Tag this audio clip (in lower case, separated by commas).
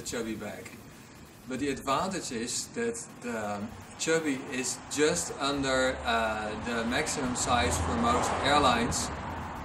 vehicle, speech